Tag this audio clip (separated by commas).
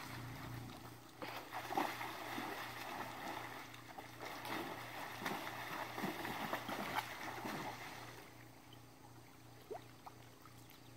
splashing water